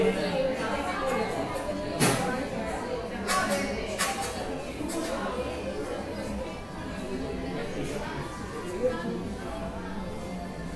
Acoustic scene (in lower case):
cafe